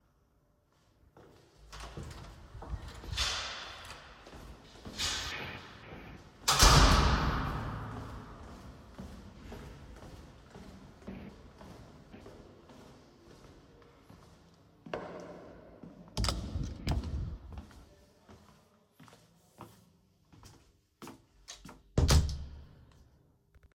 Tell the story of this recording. i opened the corridor door and walked toward my room. then i opened the door of my room went inside the room closed the door and continued walking further into the room.